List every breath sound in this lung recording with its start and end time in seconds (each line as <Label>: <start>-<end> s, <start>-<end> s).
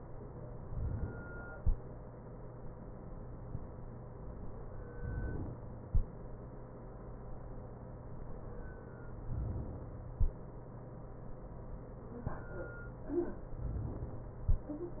Inhalation: 4.96-5.86 s, 9.26-10.16 s